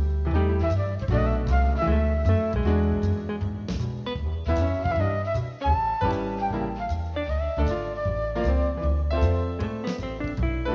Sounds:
Music

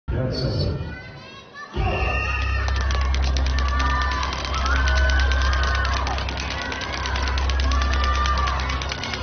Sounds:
rope skipping

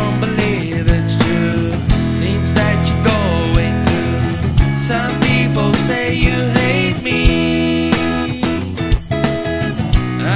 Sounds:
playing gong

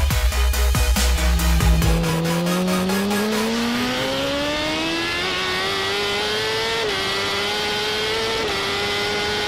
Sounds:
Music, Accelerating, Vehicle

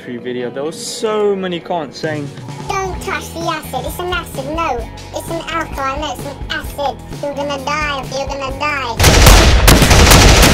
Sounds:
Speech, Music

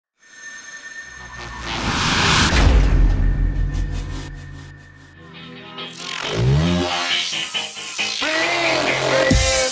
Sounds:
Music, Techno

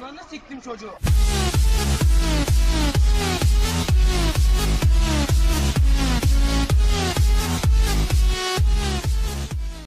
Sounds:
Dubstep, Electronic music, Music, Speech

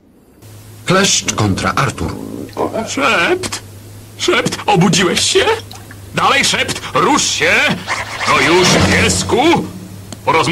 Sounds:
Speech

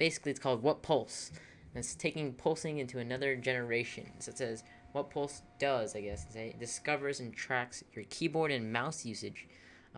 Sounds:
Speech

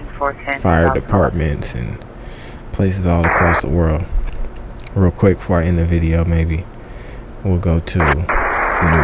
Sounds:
police radio chatter

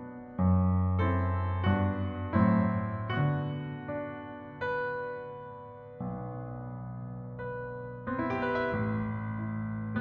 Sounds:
Music, Tender music

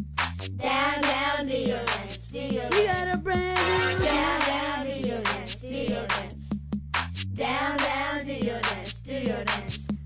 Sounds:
Music

